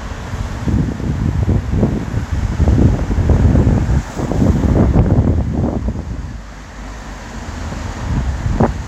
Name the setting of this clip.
street